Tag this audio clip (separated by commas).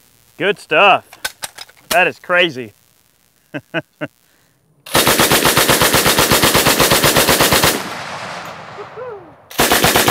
machine gun shooting